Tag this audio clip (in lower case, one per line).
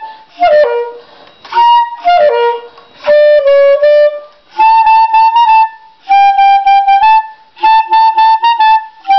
whistle